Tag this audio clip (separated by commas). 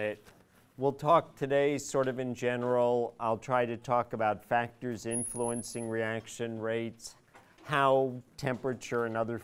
Speech